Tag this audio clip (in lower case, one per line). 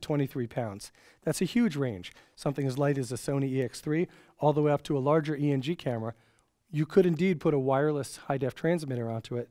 speech